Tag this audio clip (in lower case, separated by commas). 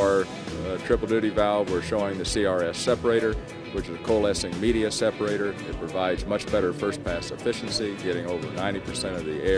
speech, music